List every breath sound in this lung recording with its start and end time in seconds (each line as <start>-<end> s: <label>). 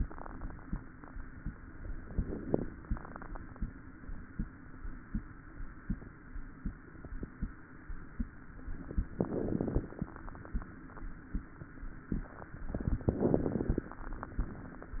1.97-2.94 s: inhalation
1.97-2.94 s: crackles
9.15-10.11 s: inhalation
9.15-10.11 s: crackles
13.05-14.02 s: inhalation
13.05-14.02 s: crackles